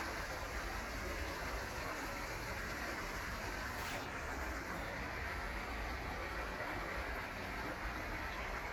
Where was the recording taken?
in a park